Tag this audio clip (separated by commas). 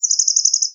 Wild animals, bird call, Animal, Bird